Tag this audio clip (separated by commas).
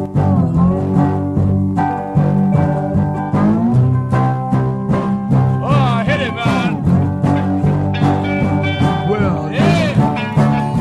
Music, Speech